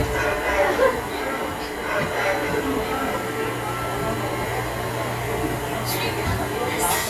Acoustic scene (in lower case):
subway train